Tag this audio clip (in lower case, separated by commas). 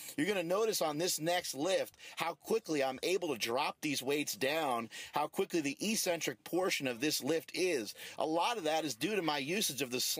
speech